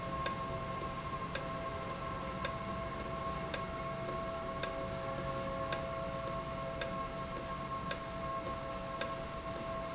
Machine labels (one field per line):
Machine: valve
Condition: normal